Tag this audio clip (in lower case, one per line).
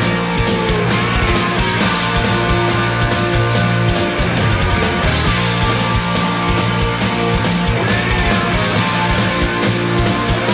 music